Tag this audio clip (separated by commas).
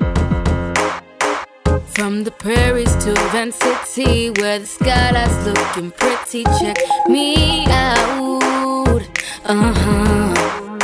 Soundtrack music, Music